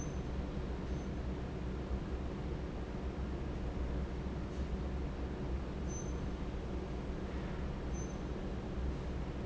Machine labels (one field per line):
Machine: fan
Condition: normal